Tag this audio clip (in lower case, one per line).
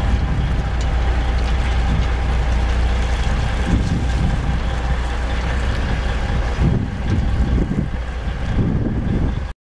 wind
wind noise (microphone)